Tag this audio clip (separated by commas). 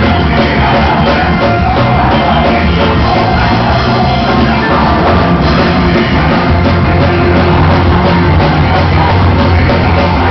Music